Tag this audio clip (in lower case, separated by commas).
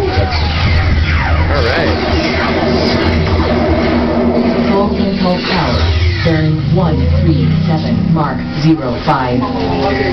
inside a small room, speech